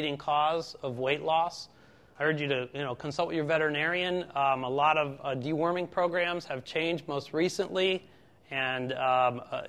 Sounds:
speech

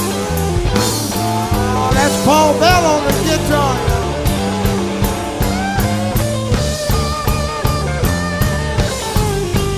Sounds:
psychedelic rock, jazz, music

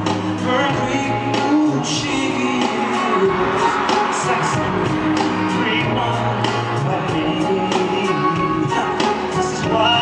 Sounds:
music, singing, inside a large room or hall

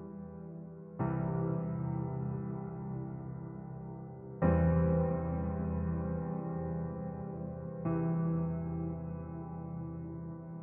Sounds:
music

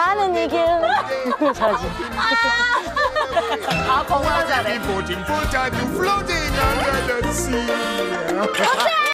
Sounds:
music, speech, male singing

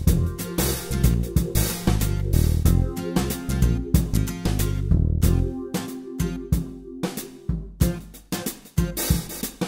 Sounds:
rimshot, cymbal, hi-hat, percussion, drum, drum kit, bass drum, snare drum

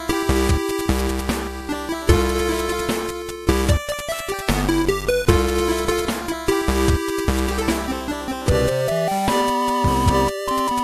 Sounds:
soundtrack music, music

